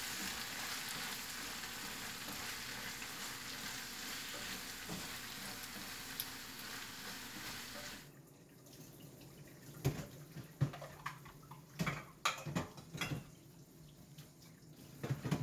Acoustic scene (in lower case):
kitchen